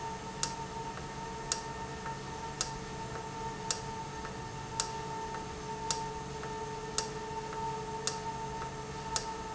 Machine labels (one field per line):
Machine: valve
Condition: normal